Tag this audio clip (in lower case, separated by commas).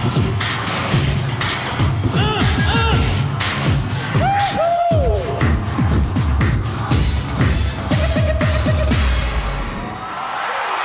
music, pop music